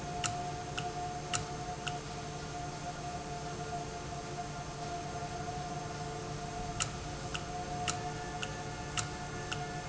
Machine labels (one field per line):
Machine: valve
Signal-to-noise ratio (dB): -6 dB